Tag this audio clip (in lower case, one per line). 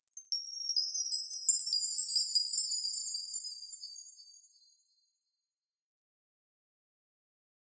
chime
bell